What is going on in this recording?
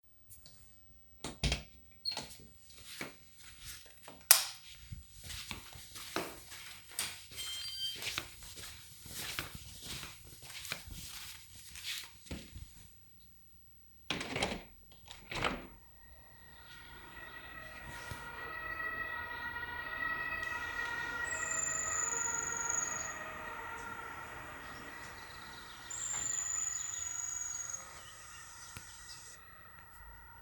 I opened the door entered the kitchen turned on the lamp the washing machine finished and beeped , then opened the window hearing the fire truck siren and birds’ sound